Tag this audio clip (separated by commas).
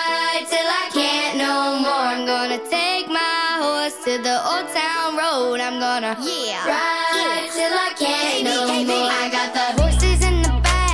child singing